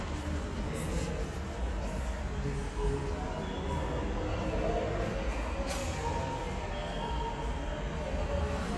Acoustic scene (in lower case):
subway station